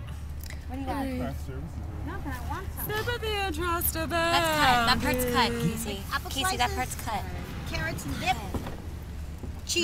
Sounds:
Speech

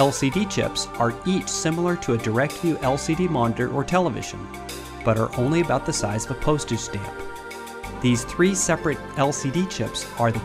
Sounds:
Music, Speech

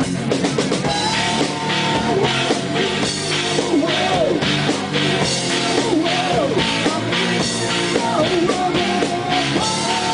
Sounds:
Music, Rock music, Heavy metal

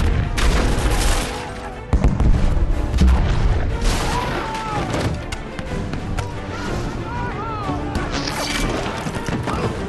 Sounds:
Music

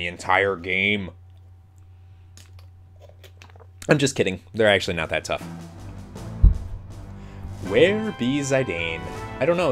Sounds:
Speech, inside a large room or hall, inside a small room, Music

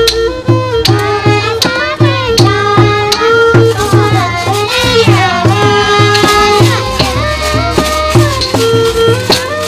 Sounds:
Traditional music, Music

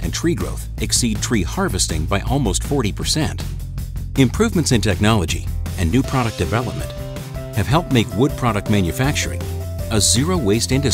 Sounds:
Music, Speech

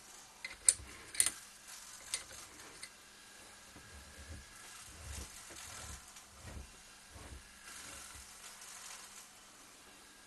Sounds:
Tools

